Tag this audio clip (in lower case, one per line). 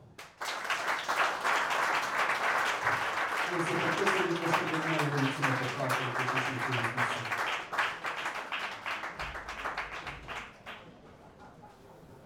applause
human group actions